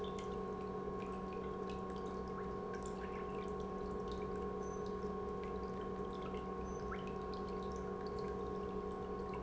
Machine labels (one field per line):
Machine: pump